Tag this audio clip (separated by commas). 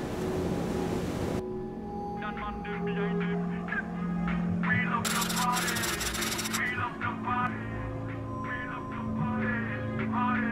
Soundtrack music, Speech, Music